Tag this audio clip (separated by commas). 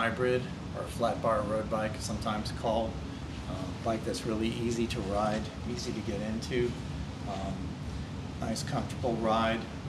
Speech